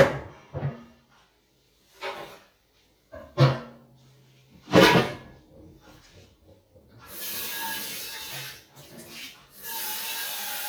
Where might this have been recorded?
in a kitchen